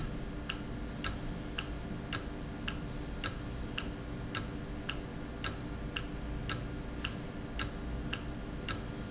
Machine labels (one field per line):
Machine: valve